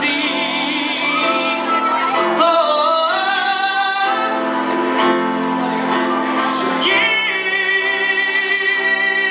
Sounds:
Music, Male singing

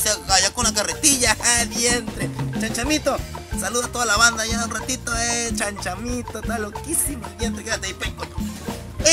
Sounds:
Music, Speech

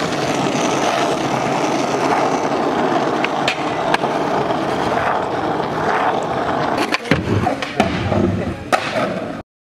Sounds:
skateboarding

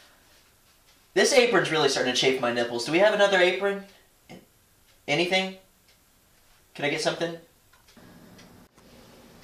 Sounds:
Speech

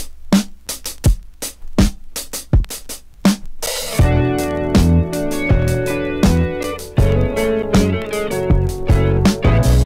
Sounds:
Drum, Musical instrument, Drum kit, Music

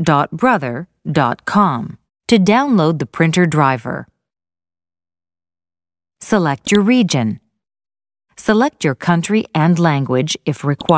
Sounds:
Speech

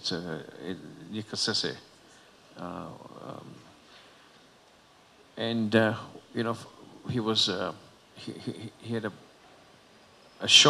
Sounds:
Speech

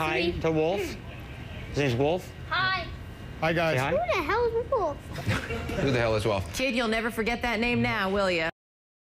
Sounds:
Speech, Music

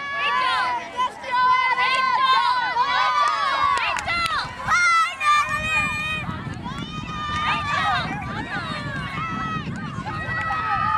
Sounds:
Speech, outside, urban or man-made

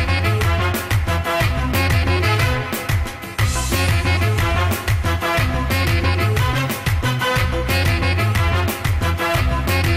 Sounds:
Music of Bollywood, Music

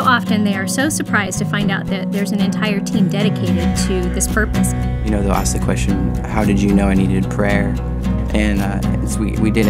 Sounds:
Music, Speech

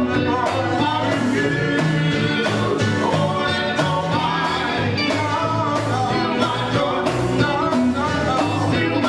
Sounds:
Male singing, Music, Choir

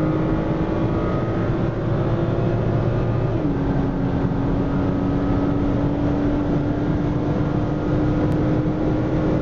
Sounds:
Engine, Car, Vehicle, Accelerating, Medium engine (mid frequency)

